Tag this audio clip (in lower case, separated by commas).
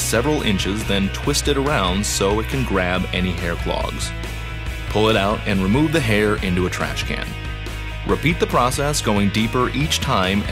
music, speech